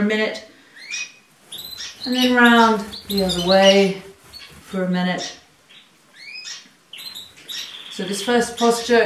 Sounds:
rodents

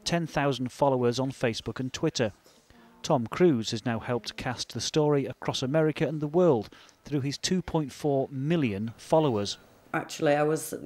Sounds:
speech

